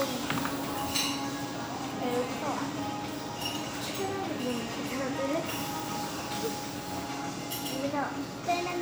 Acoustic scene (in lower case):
restaurant